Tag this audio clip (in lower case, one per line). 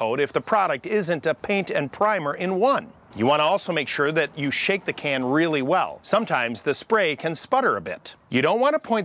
speech